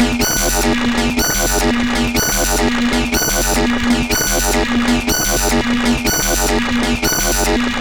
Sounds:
alarm

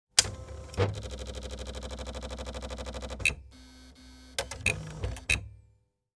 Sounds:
domestic sounds
typing
typewriter

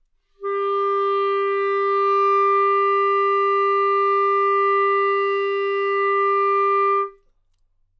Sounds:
wind instrument
musical instrument
music

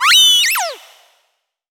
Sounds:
animal

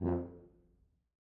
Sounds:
music
musical instrument
brass instrument

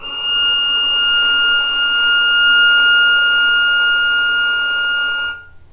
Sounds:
bowed string instrument
music
musical instrument

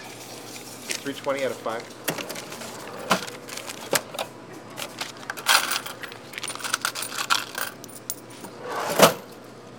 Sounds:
mechanisms

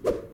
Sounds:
swoosh

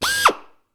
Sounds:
tools
power tool
drill

